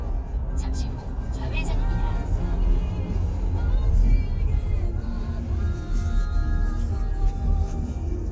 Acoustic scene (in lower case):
car